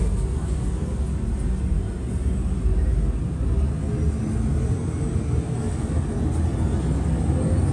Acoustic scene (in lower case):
bus